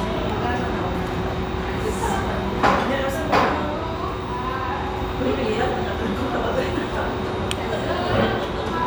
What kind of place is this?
restaurant